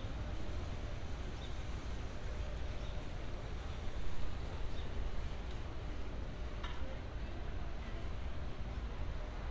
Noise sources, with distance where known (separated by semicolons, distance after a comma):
background noise